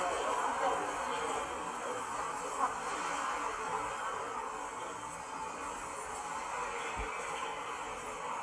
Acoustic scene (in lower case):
subway station